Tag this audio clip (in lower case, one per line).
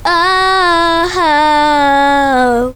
singing
human voice